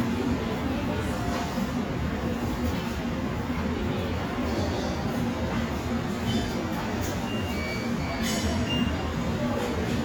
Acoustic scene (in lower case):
subway station